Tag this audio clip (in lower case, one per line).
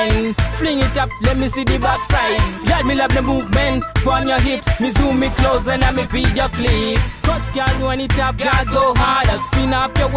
music